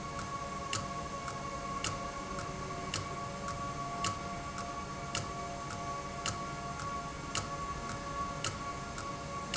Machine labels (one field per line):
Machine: valve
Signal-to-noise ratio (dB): -6 dB